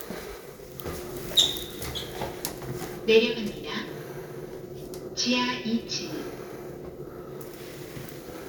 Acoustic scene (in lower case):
elevator